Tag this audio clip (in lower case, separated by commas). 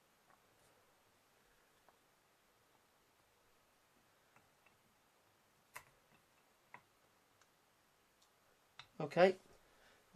silence, speech